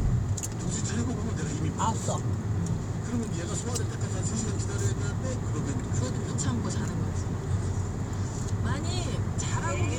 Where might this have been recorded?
in a car